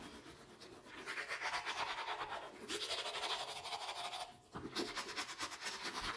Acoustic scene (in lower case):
restroom